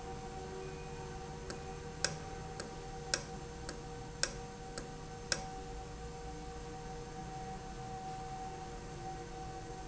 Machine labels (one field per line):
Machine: valve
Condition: normal